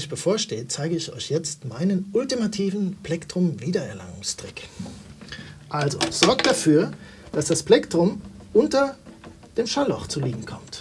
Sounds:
Speech

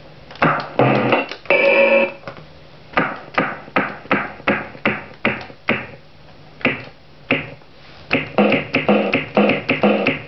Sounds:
Music, Synthesizer

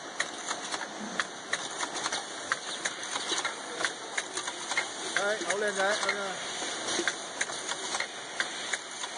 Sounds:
Speech

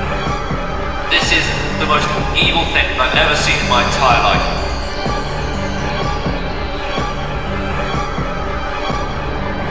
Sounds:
Theme music, Music, Speech

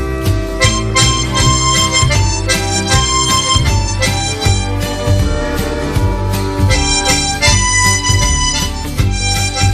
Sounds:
Wind instrument, Harmonica

